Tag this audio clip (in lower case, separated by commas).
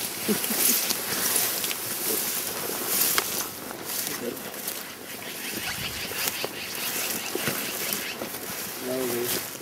animal, speech